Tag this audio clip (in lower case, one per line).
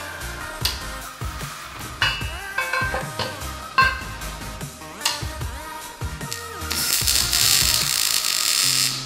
arc welding